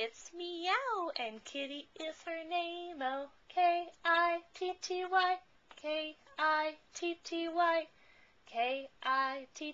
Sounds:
Speech

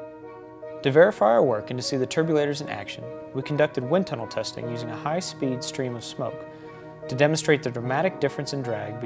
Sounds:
Speech, Music

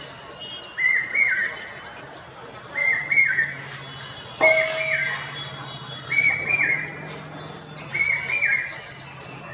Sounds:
cuckoo bird calling

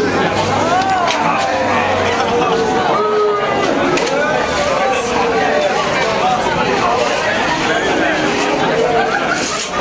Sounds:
Speech, footsteps

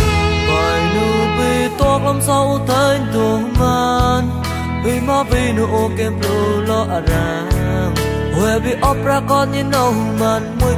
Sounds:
Music

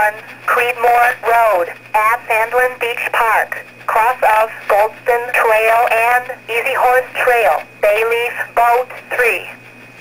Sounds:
inside a small room, Radio, Speech

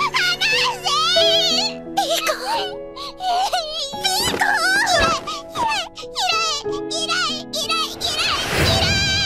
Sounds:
Speech, Music

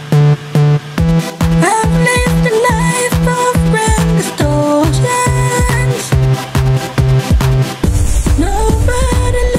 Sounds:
Music, Techno, Electronic music

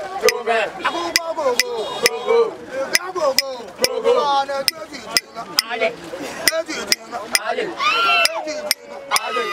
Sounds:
Music

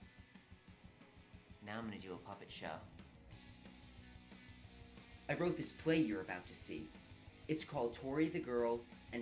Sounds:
Speech

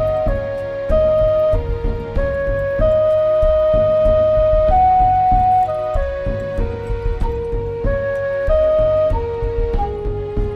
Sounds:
Music, Flute

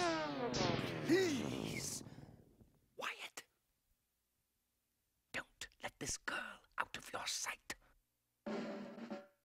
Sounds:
Speech, Music

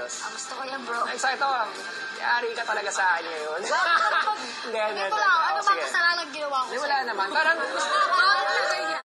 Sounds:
Music, Speech

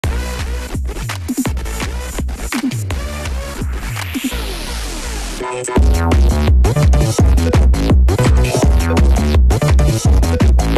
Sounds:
Music, Electronic dance music

